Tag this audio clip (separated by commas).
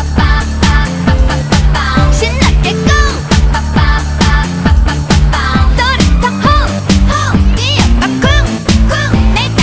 Music, Pop music